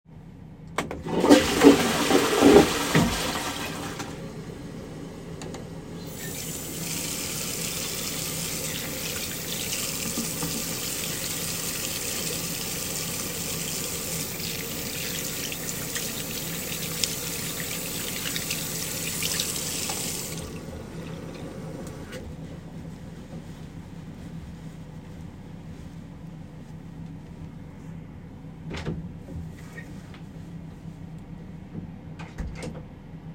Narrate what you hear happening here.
I flushed the toilet, turned the sink on, pumped some soap into my hand, washed my hands and turned the sink off. Then I dried my hands into a towel. Finally, I opened the door, got out of the toilet and closed it.